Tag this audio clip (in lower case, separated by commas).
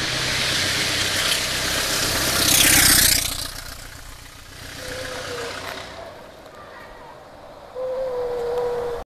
vehicle, motorcycle